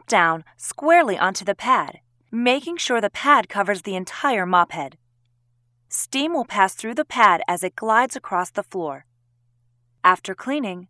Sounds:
speech

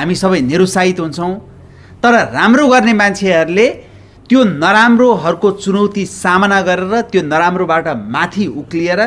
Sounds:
speech, man speaking

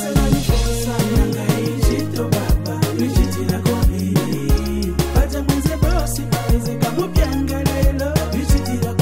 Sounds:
afrobeat, rapping, hip hop music, music

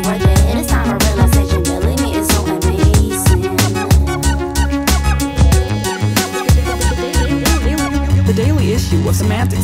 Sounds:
music, funk

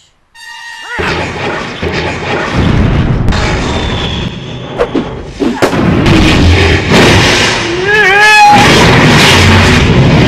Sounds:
boom, music

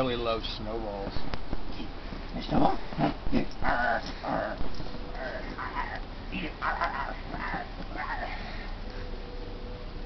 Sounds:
pets, bark, animal, dog

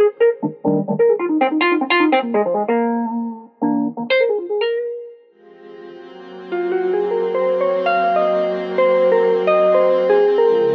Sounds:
musical instrument, music, piano, keyboard (musical), electric piano

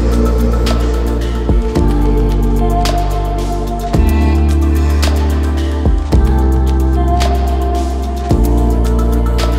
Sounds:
airplane

